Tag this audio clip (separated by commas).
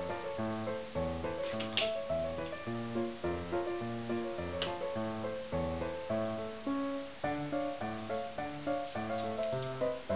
Music